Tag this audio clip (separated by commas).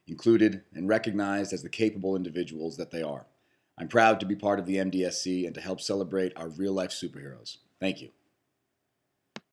Speech